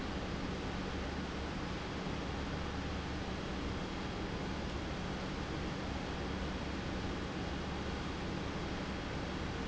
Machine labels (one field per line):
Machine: pump